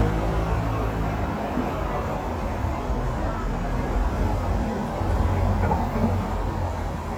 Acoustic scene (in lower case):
street